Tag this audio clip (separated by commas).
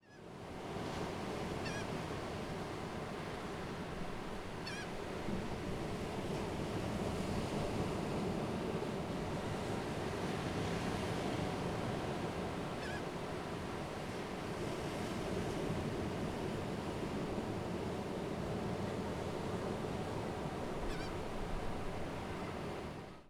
Ocean, Water